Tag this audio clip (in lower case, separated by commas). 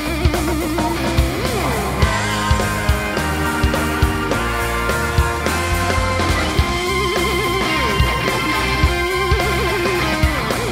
music